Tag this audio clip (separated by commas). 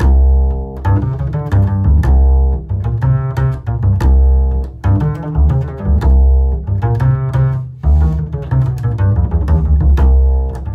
playing double bass